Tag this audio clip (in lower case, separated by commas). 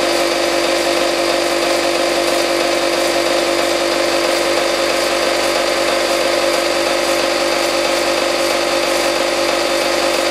inside a small room